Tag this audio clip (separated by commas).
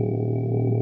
Human voice, Singing